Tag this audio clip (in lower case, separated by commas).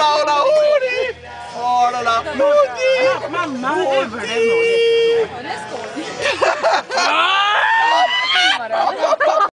speech, music